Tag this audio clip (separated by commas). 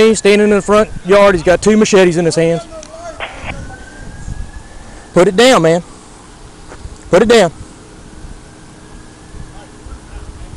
outside, urban or man-made, Speech